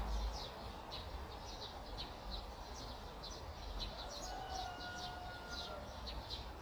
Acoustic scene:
park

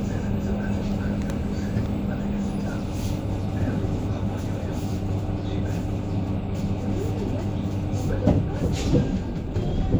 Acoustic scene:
bus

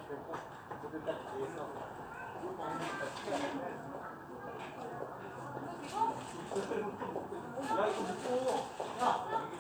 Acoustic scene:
residential area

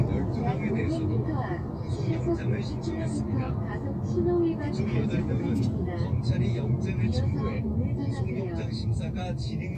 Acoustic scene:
car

